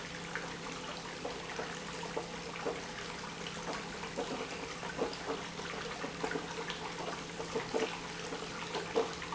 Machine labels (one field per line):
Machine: pump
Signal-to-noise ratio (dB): 6 dB